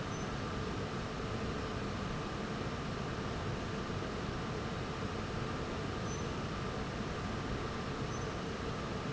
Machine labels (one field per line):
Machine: fan